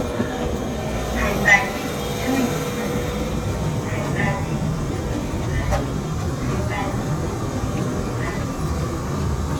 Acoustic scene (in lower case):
subway station